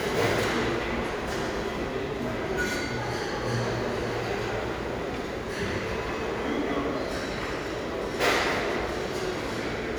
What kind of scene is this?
restaurant